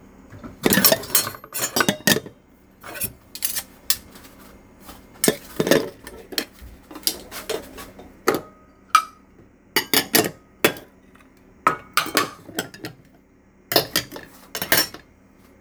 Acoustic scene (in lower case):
kitchen